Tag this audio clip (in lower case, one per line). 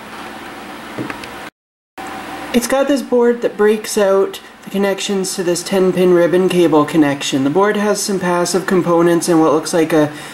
speech